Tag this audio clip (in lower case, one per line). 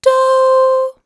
human voice
female singing
singing